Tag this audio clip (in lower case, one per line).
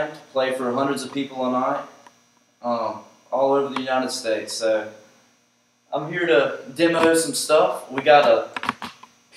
speech